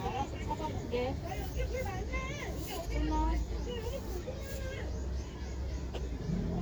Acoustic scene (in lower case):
residential area